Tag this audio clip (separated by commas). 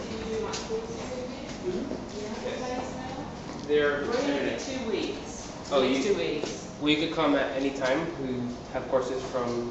inside a large room or hall, Speech